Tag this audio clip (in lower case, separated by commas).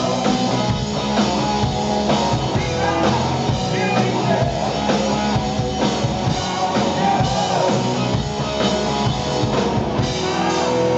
music